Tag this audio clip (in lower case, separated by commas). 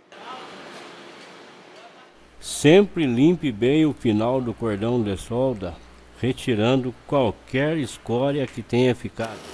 arc welding